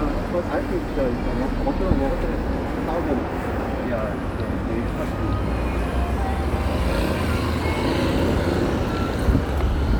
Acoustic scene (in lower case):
residential area